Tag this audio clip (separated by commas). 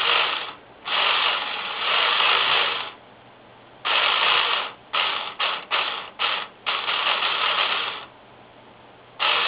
Printer